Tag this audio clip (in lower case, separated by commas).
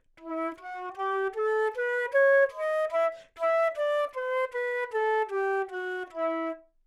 music, musical instrument, woodwind instrument